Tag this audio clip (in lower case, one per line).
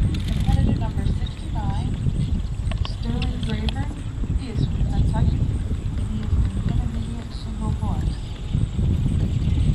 speech